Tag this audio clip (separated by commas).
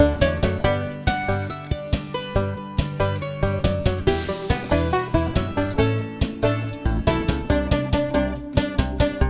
playing mandolin